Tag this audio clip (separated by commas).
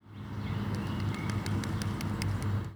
Wild animals, Bird, Animal